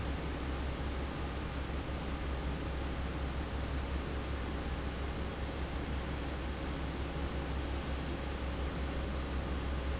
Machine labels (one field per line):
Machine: fan